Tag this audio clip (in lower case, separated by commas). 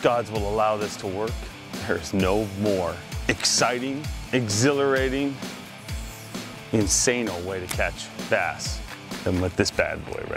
speech, music